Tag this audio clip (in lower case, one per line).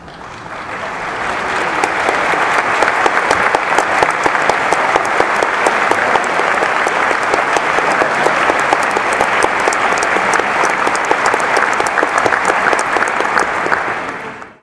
applause
human group actions